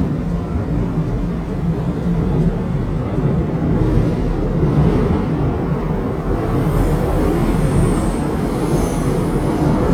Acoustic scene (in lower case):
subway train